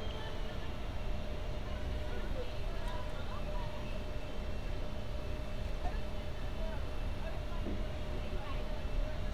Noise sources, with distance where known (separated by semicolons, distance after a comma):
person or small group talking, near